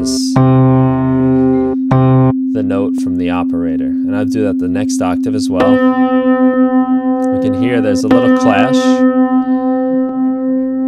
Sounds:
effects unit

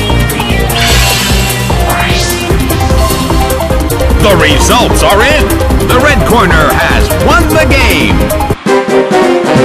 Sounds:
music
speech

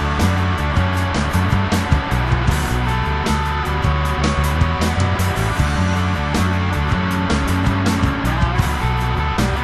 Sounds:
rock music
music
psychedelic rock

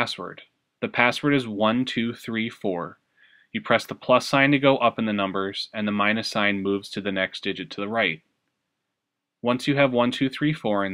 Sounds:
speech

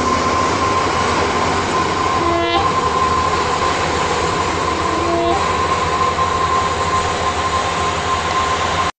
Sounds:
vehicle

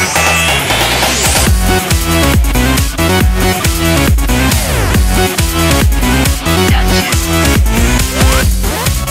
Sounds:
rhythm and blues
music

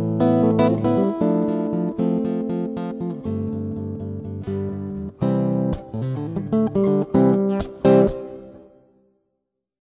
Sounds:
music
plucked string instrument
musical instrument
guitar
electric guitar
strum

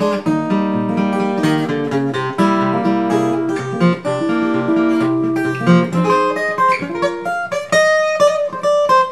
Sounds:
plucked string instrument
musical instrument
acoustic guitar
guitar
music
country

